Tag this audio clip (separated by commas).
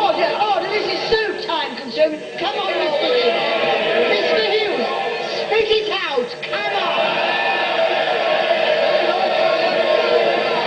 people booing